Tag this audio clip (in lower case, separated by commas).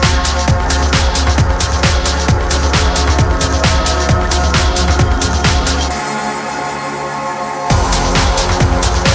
music